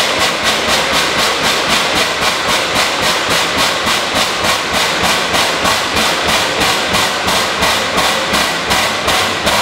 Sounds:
Engine, Heavy engine (low frequency)

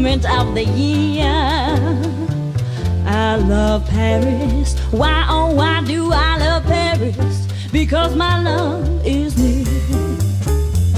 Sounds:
Music, Musical instrument

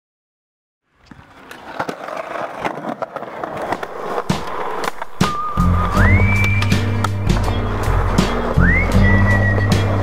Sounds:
Skateboard, Music

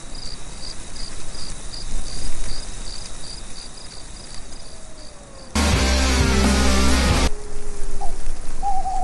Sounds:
Music, Rock and roll, Funk

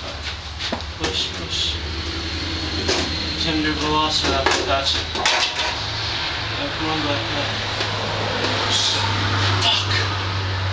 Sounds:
inside a small room, outside, urban or man-made, Speech

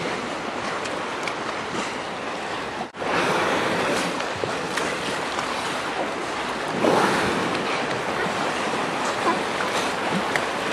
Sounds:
Water vehicle

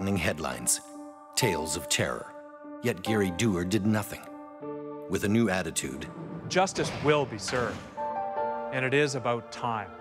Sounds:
Door, Slam, Music, Speech

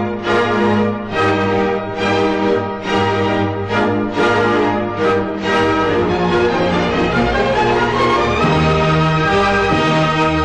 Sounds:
Music

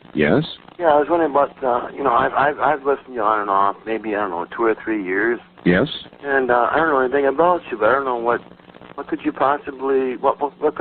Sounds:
Speech

